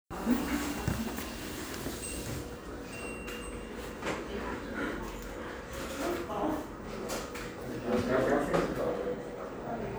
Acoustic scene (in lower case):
cafe